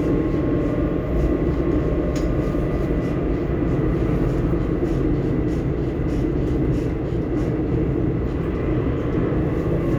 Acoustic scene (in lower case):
subway train